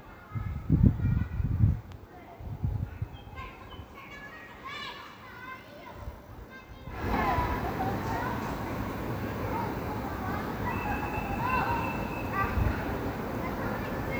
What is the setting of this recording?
park